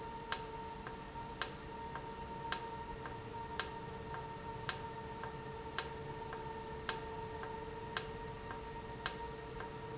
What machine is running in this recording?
valve